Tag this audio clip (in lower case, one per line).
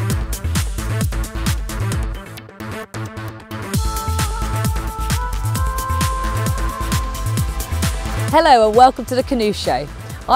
speech
music